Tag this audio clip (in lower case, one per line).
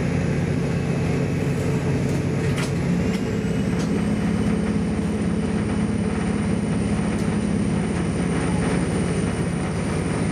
train
vehicle
rail transport